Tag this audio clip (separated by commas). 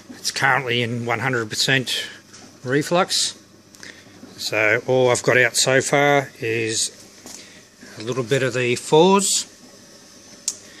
Speech